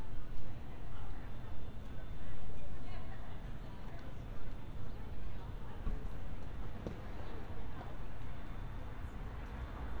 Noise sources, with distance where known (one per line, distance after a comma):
person or small group talking, far